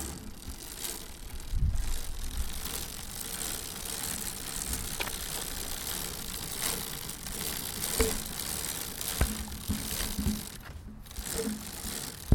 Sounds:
bicycle
vehicle

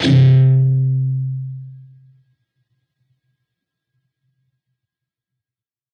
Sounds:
plucked string instrument
musical instrument
music
guitar

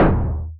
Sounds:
thump

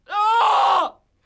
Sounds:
human voice
screaming

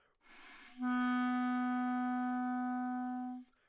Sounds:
woodwind instrument
music
musical instrument

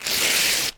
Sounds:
tearing

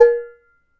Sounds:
domestic sounds
dishes, pots and pans

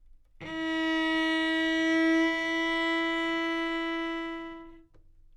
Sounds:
music
musical instrument
bowed string instrument

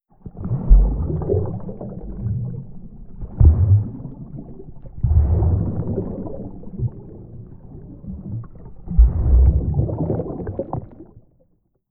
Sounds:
water
ocean

